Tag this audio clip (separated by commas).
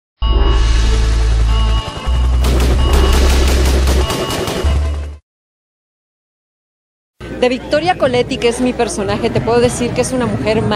Speech, Fusillade, woman speaking, Music